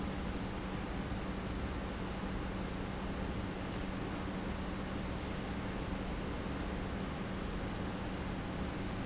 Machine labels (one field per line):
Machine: pump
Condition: normal